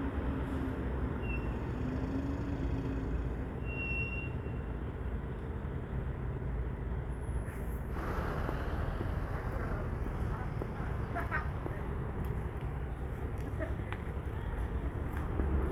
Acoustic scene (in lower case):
street